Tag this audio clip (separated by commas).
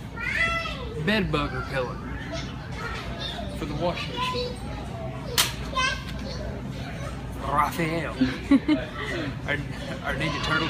inside a public space, Speech